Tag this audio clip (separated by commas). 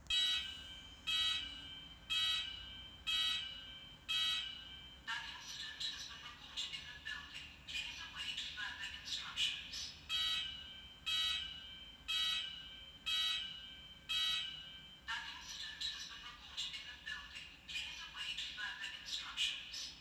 Alarm